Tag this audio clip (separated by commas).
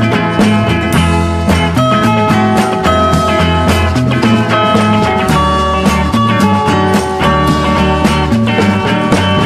Music